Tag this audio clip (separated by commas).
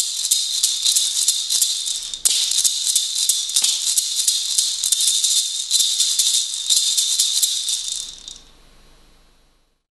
Music, inside a small room, Rattle (instrument)